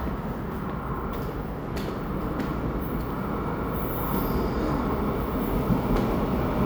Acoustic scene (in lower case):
subway station